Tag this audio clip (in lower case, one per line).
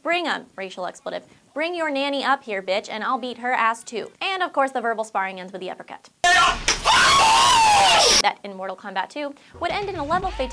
speech